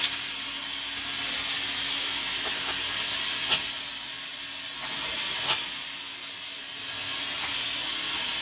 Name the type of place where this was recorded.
kitchen